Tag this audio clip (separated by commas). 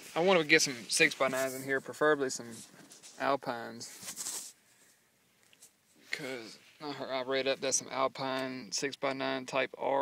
Speech